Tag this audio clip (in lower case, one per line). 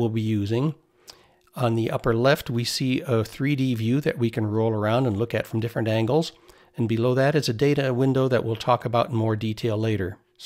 speech